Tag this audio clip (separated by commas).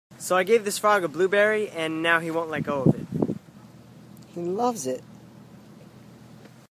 Speech